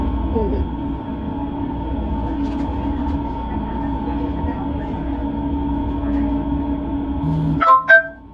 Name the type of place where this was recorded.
subway train